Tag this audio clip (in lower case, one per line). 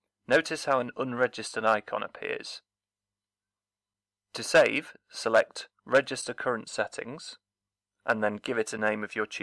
speech